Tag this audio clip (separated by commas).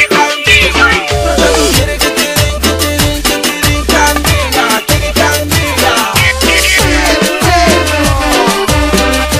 Music, Funny music